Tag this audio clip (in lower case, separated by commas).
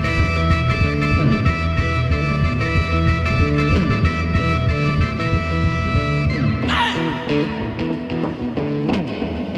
music, psychedelic rock